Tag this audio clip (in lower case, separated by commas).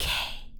whispering, human voice